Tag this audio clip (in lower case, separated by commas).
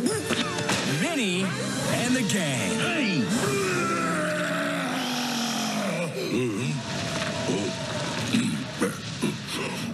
speech, music